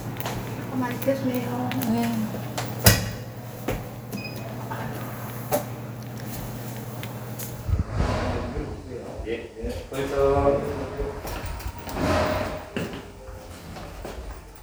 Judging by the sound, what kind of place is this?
elevator